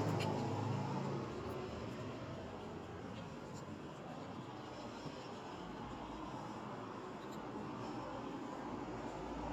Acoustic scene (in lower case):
street